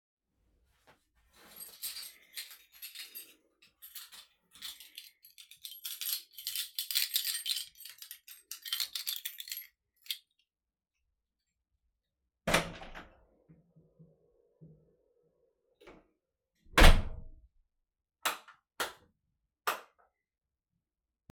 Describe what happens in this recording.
I searched for my keychain in my pocket. Opened my dorm room door and switched on all the lights